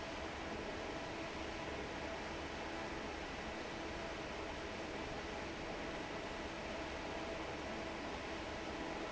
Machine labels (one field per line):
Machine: fan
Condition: normal